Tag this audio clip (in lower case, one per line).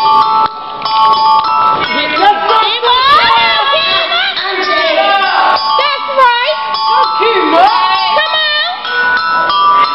speech
inside a large room or hall
music